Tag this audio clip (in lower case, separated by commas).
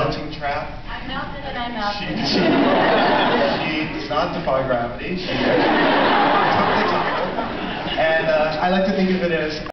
woman speaking, speech, man speaking, conversation